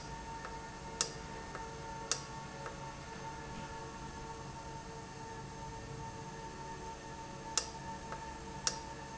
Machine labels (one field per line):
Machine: valve